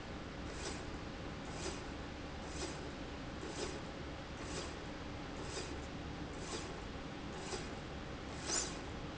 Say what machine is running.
slide rail